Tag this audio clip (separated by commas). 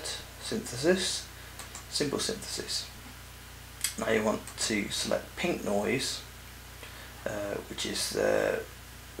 Speech